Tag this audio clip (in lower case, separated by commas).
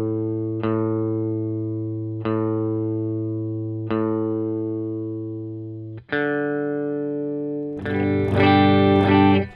guitar, music, effects unit, speech, reverberation, distortion